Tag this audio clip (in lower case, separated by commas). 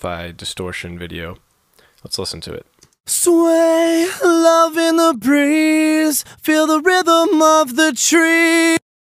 speech